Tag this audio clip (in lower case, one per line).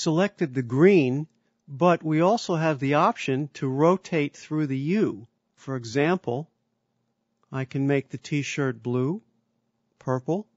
speech